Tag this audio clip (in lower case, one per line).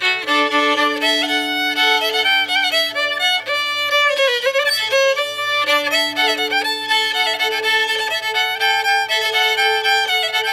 musical instrument
music
violin